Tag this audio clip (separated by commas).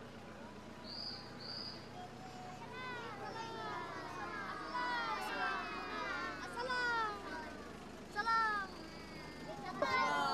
Speech